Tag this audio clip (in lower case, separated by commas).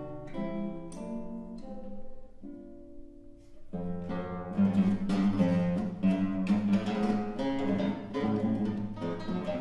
musical instrument, music, guitar, plucked string instrument